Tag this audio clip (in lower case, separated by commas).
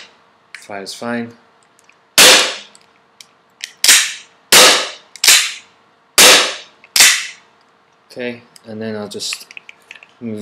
gunshot